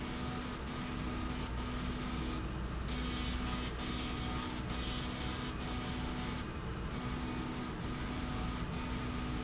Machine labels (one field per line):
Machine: slide rail